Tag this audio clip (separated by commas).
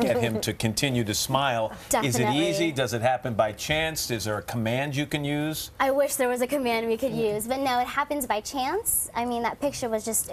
Speech